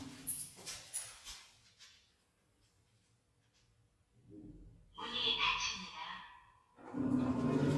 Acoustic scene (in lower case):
elevator